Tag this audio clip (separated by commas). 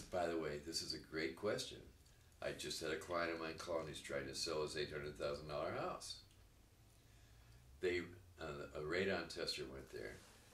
inside a small room, Speech